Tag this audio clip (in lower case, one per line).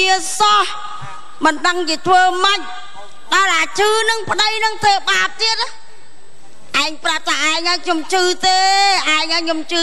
speech